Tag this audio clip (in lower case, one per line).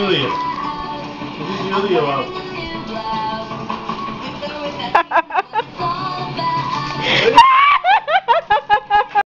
music
speech